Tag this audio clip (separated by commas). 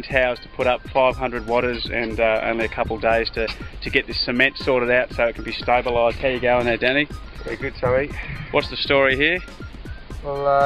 Speech, Music